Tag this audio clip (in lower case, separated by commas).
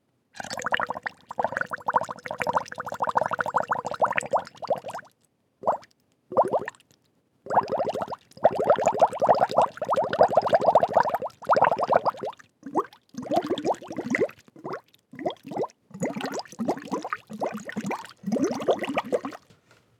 gurgling, water